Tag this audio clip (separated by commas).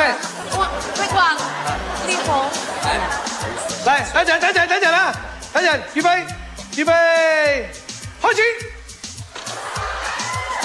Music, Speech